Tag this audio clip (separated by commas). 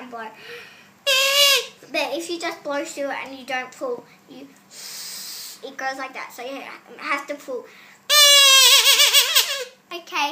Speech, Child speech